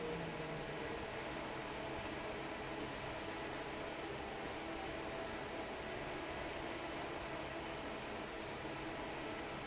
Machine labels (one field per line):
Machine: fan